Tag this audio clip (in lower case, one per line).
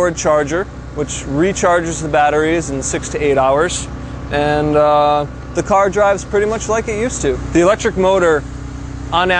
speech
vehicle
car